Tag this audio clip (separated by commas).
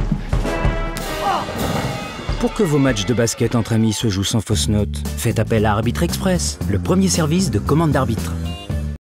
Speech, Music